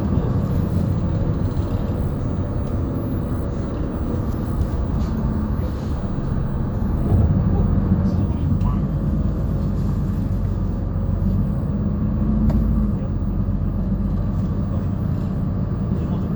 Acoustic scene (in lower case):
bus